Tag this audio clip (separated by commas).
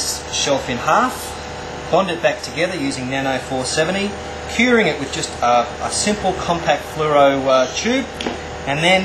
Speech